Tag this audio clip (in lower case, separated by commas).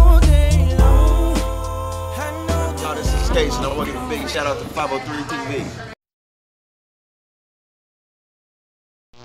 silence, singing, speech, music